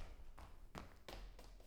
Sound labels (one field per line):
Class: footsteps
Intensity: high